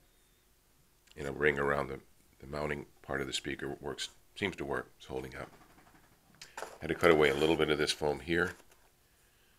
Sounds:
speech

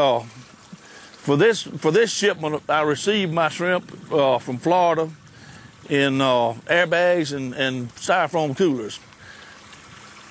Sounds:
speech

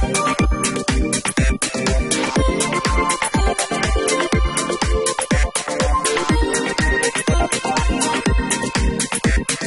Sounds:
music

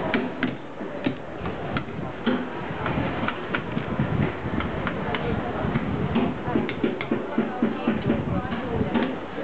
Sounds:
speech

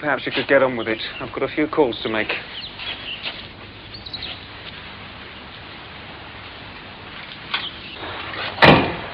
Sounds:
tweet
bird
speech
bird call

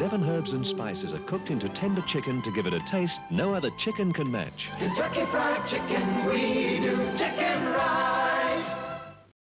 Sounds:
speech
music

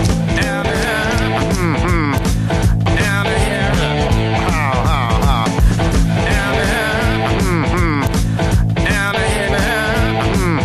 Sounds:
music

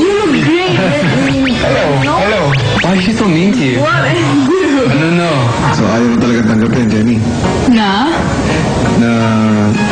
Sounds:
speech
music

